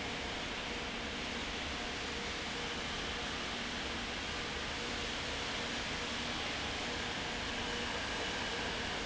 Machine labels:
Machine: fan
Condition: abnormal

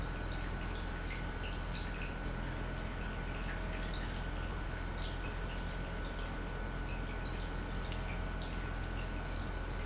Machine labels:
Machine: pump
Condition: normal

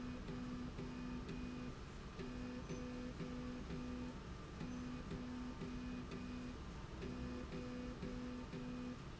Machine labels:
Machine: slide rail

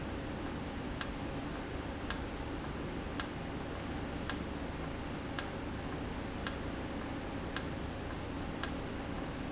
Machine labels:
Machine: valve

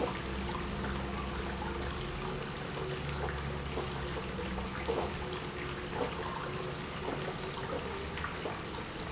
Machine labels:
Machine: pump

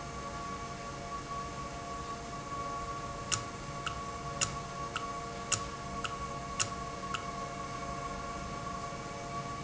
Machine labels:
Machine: valve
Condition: normal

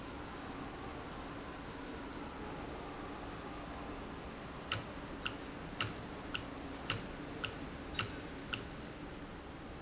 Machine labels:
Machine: valve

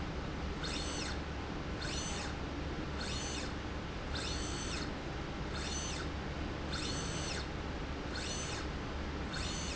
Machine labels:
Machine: slide rail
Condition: normal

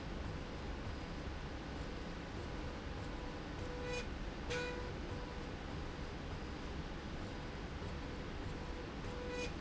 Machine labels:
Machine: slide rail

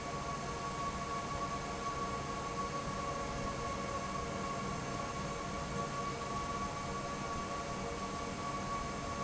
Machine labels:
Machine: fan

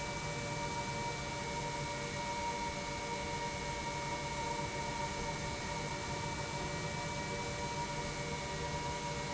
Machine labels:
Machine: pump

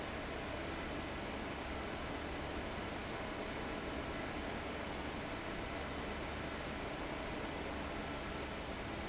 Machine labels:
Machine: fan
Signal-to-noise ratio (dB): 0 dB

